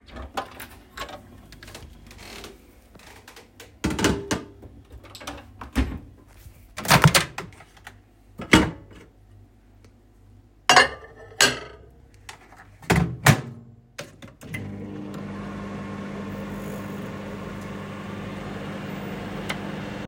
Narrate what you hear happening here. I opened the fridge, took the plate, closed the fridge, opened the microwave door, heard a little creaking, put the plate in microwave, closed the door and turned it on